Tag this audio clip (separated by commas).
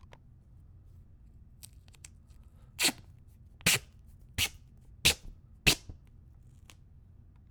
home sounds, duct tape